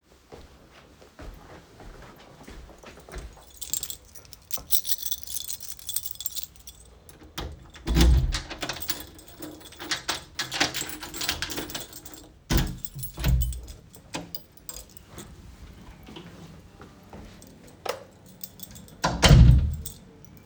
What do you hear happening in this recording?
I walked up to the front door while my keys were clanking. I unlocked and opened the door with my keys. I stepped inside and switched on the light. I then closed the door behind me.